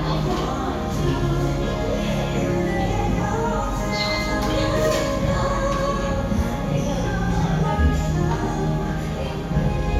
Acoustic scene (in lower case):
cafe